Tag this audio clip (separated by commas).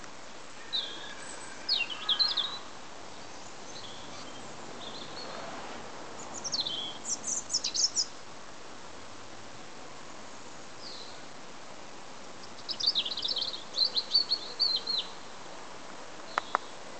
Animal, Bird vocalization, Wild animals, Bird